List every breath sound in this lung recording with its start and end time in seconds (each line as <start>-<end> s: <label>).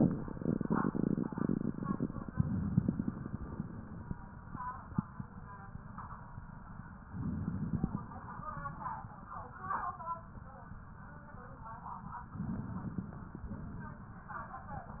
2.35-4.06 s: inhalation
7.06-8.48 s: inhalation
12.29-13.45 s: inhalation
13.45-14.56 s: exhalation